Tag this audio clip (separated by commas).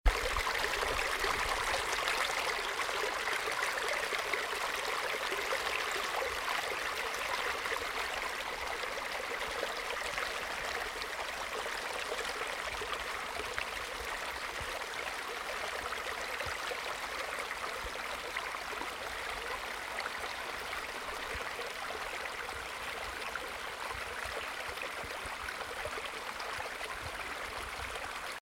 Water, Stream